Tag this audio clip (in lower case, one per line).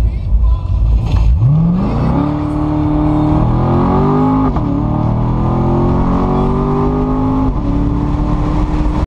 music